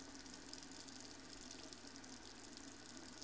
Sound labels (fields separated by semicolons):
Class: water tap; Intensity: medium